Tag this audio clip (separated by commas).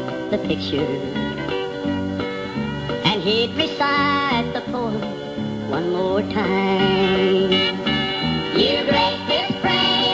inside a small room, Music